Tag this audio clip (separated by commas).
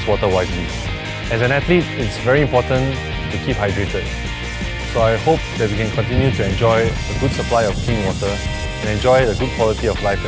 Music, Speech